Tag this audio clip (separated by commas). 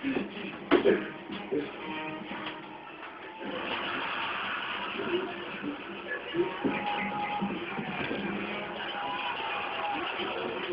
Speech, Music